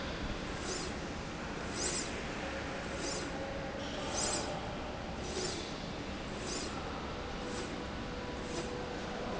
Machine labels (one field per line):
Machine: slide rail